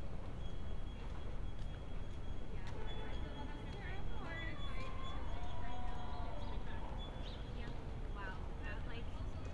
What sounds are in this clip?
person or small group talking